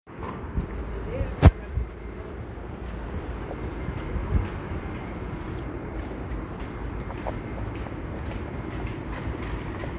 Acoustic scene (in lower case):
residential area